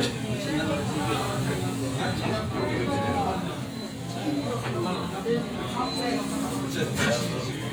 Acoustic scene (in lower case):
crowded indoor space